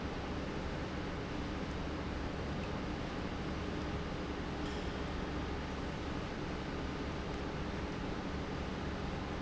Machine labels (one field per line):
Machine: pump